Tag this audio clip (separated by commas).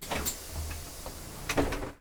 Bus, Motor vehicle (road), Vehicle